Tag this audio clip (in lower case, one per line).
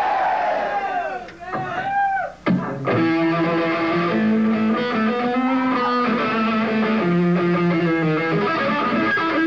music